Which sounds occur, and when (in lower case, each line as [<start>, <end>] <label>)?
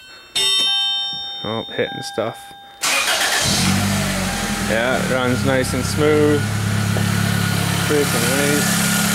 [0.00, 2.83] music
[1.36, 2.44] man speaking
[2.85, 4.67] engine starting
[2.85, 9.14] medium engine (mid frequency)
[4.59, 6.53] man speaking
[7.87, 8.73] man speaking